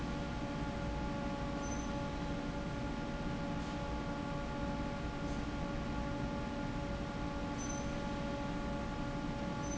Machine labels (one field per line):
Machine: fan